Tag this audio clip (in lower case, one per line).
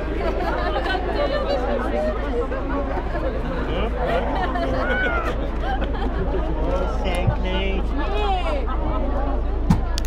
speech